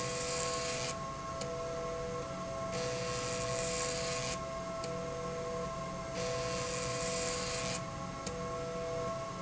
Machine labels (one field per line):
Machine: slide rail